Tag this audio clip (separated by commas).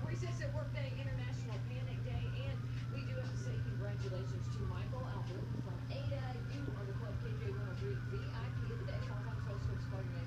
Speech